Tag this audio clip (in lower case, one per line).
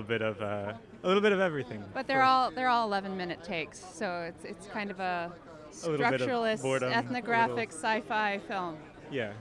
speech